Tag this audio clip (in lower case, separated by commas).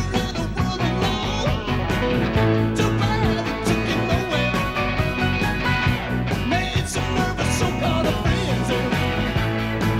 singing, rock and roll